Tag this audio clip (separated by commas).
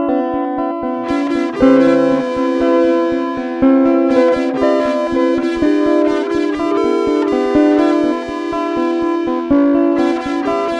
Music